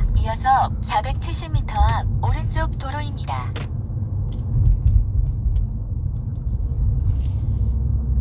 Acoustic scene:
car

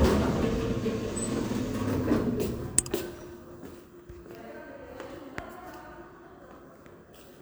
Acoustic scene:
elevator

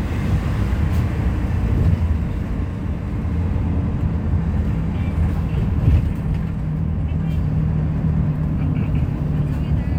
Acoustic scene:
bus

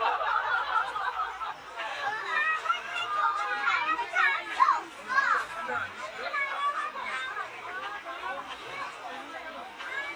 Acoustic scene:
park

